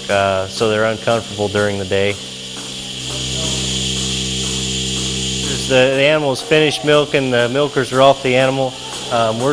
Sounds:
Speech

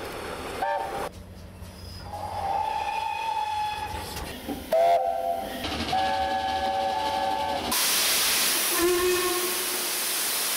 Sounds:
train whistling

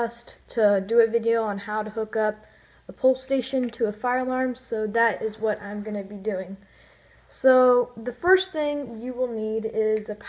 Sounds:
Speech

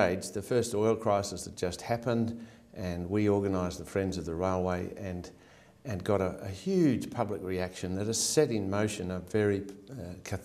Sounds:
Speech

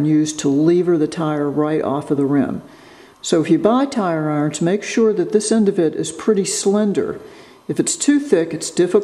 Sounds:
Speech

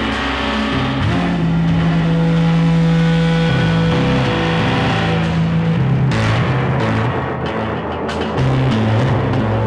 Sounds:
Music

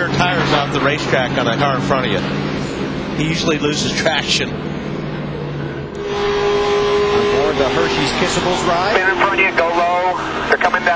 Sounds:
Vehicle, Speech, Car, Motor vehicle (road)

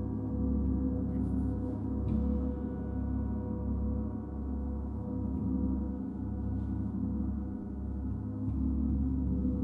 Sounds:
Gong

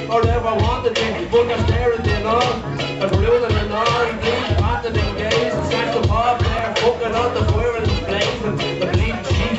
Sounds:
Music

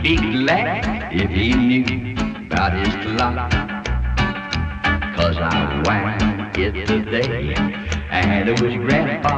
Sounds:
Music

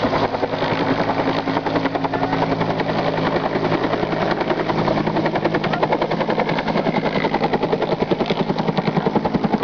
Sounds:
Speech

